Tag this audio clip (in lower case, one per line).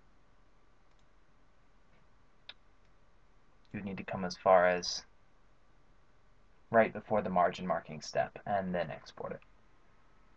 speech